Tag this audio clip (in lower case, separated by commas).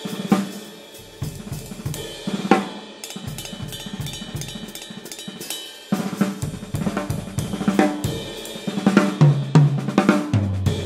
hi-hat, cymbal, playing cymbal